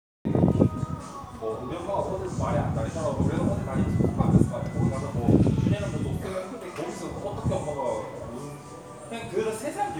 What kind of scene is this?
crowded indoor space